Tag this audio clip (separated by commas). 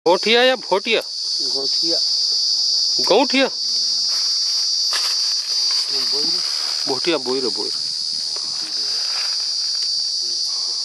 Speech